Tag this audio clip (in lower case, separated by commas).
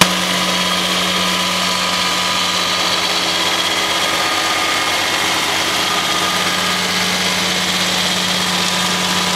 power tool, tools